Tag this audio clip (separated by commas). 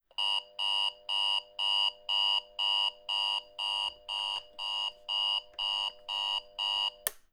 Alarm